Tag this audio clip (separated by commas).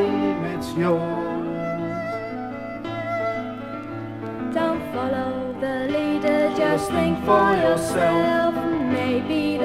Lullaby, Music